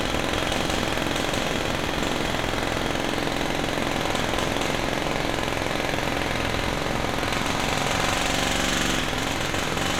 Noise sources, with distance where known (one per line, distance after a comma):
jackhammer, near